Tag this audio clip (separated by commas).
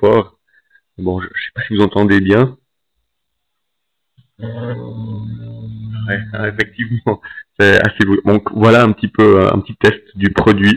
Speech